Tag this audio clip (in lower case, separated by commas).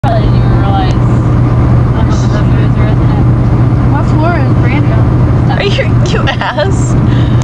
speech